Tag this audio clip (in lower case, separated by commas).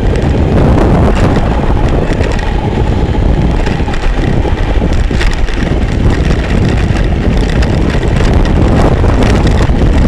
car, vehicle, motor vehicle (road)